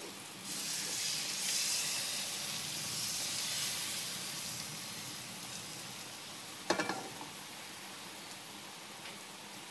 Something is sizzling and then something bangs